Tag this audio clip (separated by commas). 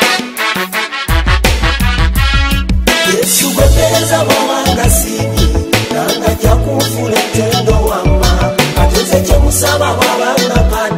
Music, Pop music